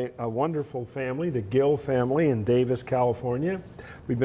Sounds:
Speech

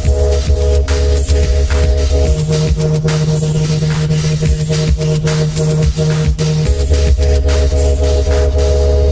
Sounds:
Electronic music, Music, Dubstep

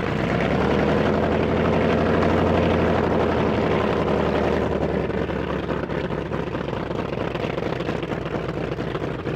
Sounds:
Aircraft, Fixed-wing aircraft, Helicopter, Vehicle

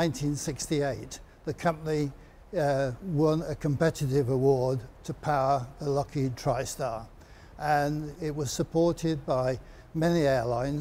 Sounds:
Speech

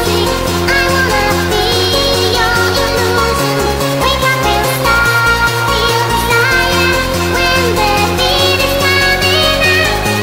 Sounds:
Music

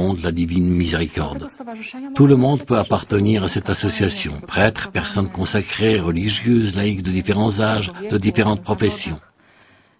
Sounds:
Speech

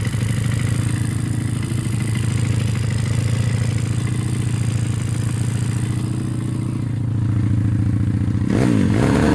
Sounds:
Motorcycle, Vehicle

